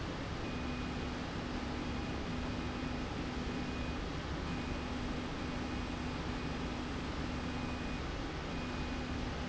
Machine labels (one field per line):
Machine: slide rail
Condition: normal